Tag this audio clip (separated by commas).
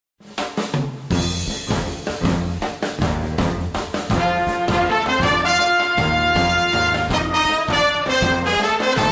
Music